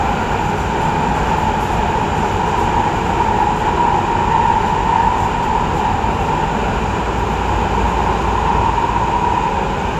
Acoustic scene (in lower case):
subway train